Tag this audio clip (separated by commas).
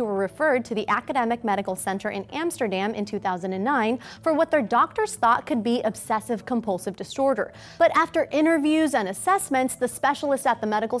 Speech